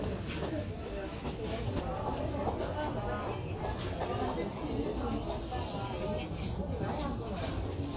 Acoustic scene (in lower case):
crowded indoor space